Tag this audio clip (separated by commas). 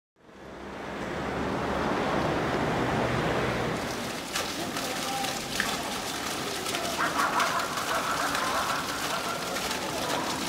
Speech